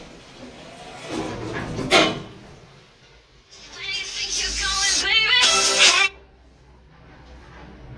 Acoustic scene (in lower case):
elevator